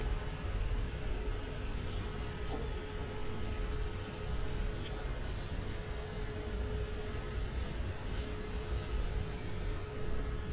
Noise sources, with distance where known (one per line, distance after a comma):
medium-sounding engine